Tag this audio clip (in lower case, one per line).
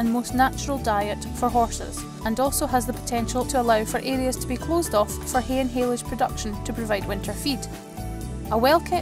music
speech